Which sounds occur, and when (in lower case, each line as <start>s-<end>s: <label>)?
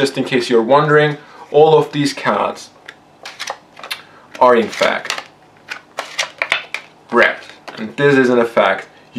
0.0s-1.2s: man speaking
0.0s-9.1s: background noise
1.4s-2.6s: man speaking
2.8s-2.9s: generic impact sounds
3.2s-3.6s: shuffling cards
3.7s-4.1s: shuffling cards
4.3s-5.2s: man speaking
4.3s-5.3s: shuffling cards
5.6s-5.8s: shuffling cards
5.9s-6.9s: shuffling cards
7.1s-7.4s: man speaking
7.1s-7.9s: shuffling cards
7.7s-8.9s: man speaking
9.1s-9.1s: man speaking